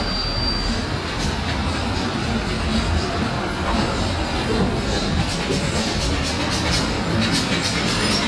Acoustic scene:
street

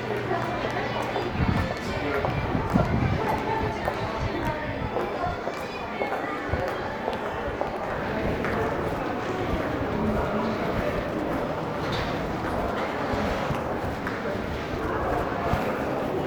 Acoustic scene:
crowded indoor space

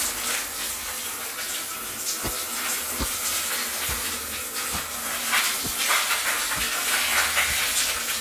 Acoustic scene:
restroom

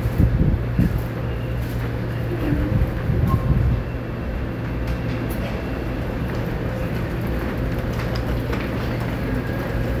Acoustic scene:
subway station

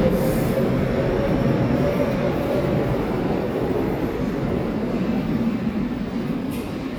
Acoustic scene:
subway station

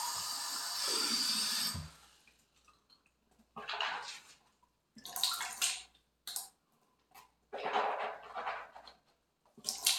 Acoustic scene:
restroom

